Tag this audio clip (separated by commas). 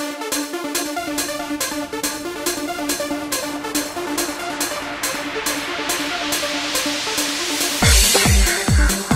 Music